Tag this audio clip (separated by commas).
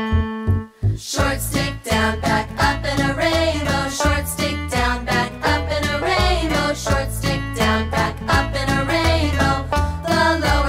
Music